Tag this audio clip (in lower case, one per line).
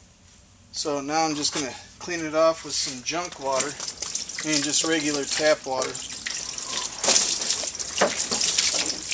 liquid
speech